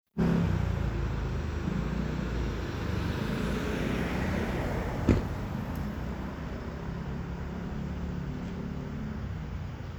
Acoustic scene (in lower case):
street